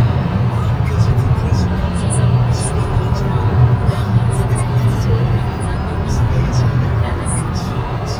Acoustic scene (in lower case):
car